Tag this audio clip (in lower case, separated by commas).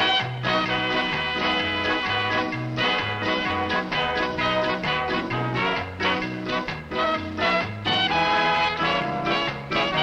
funny music, music